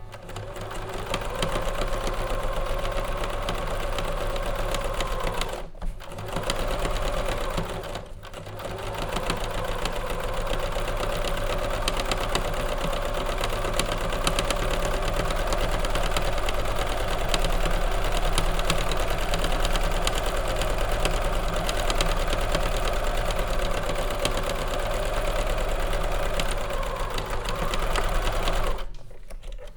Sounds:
Mechanisms, Engine

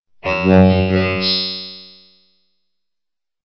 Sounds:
Speech synthesizer, Speech, Human voice

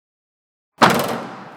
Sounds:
Motor vehicle (road), Vehicle, Car

